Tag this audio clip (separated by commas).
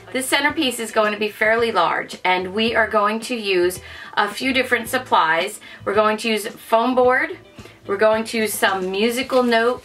Speech